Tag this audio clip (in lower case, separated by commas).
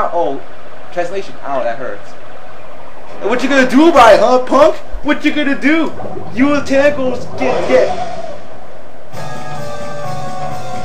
music, speech